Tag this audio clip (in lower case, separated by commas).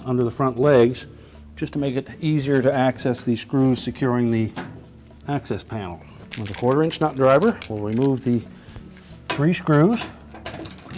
speech